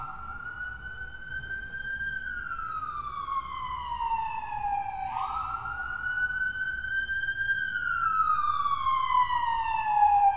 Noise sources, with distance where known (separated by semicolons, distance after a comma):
siren, near